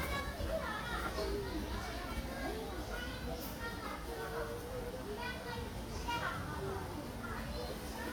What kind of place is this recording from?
park